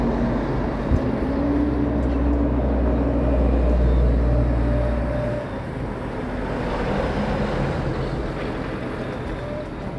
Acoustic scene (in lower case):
street